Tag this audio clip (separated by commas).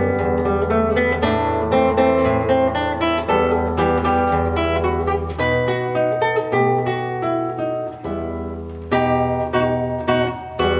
Plucked string instrument, Music, Musical instrument, Acoustic guitar, Strum, Guitar